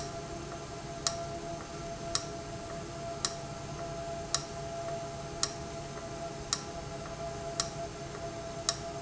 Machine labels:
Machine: valve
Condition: abnormal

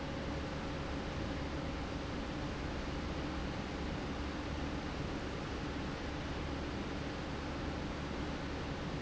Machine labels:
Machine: pump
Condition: normal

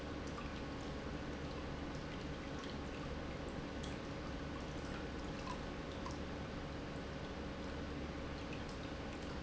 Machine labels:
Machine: pump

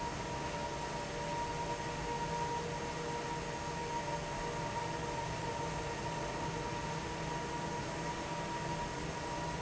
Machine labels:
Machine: fan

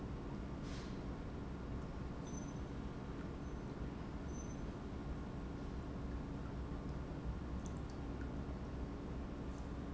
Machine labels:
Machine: pump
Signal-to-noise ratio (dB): 0 dB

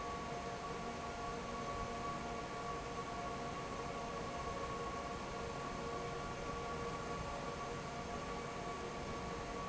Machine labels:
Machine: fan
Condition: normal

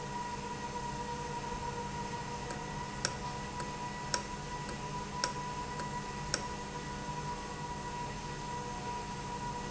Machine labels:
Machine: valve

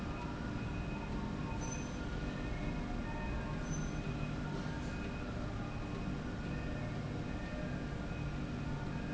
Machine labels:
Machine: slide rail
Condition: normal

